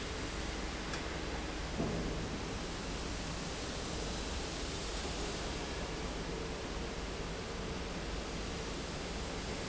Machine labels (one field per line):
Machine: fan